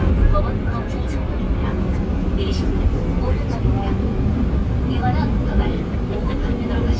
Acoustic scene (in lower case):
subway train